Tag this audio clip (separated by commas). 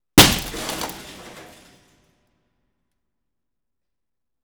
Glass, Shatter